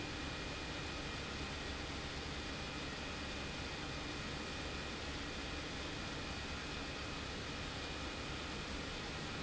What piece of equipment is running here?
pump